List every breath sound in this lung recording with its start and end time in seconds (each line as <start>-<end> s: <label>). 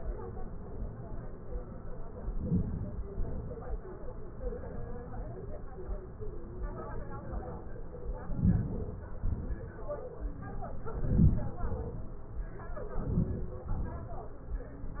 2.36-3.13 s: inhalation
3.23-3.51 s: exhalation
8.33-8.98 s: inhalation
9.28-9.78 s: exhalation
11.16-11.82 s: inhalation
11.96-12.22 s: exhalation
13.11-13.77 s: inhalation
13.86-14.17 s: exhalation